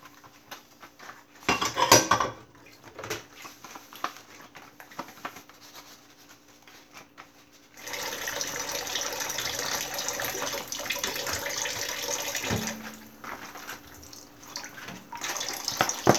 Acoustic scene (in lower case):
kitchen